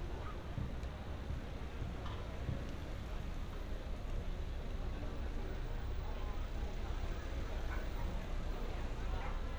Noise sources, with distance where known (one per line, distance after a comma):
person or small group talking
dog barking or whining, far